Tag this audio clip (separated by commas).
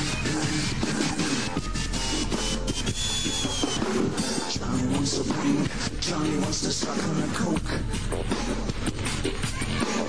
Music, Musical instrument